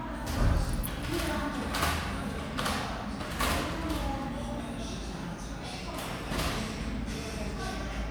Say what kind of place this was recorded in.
cafe